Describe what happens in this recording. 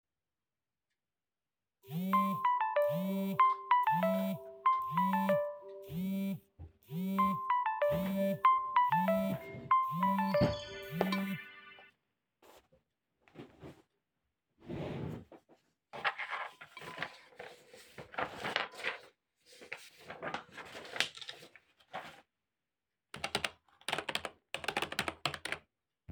Phone started ringing. I walked up to the table and turned alarm off. I sat on the chair checked paper document and typed on a keyboard.